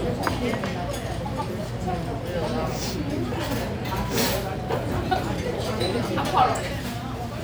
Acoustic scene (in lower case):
restaurant